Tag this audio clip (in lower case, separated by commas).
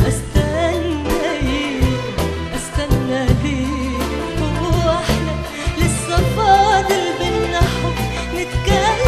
music, singing, song, middle eastern music